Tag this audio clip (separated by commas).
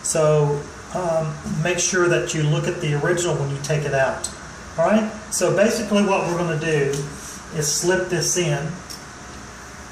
Speech